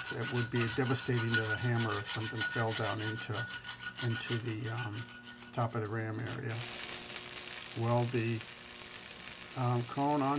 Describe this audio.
Rubbing with clanking, distant speech and some buzzing